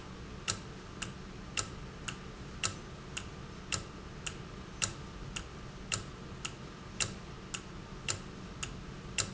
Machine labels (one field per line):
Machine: valve